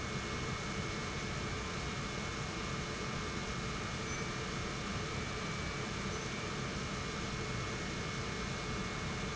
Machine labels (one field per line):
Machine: pump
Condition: normal